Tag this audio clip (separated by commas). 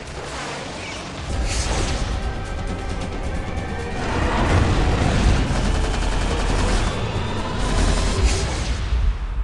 Mechanisms